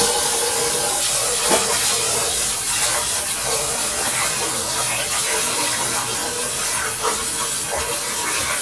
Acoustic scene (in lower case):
kitchen